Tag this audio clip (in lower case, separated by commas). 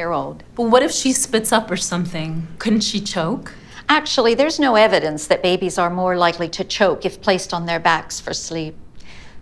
inside a small room, speech